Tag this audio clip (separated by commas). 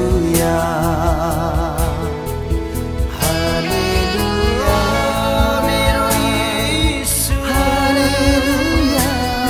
Music, Christmas music, Singing